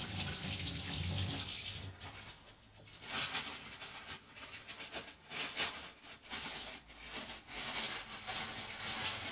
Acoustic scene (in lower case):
kitchen